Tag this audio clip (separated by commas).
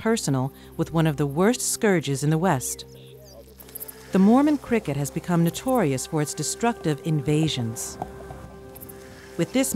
Insect, Cricket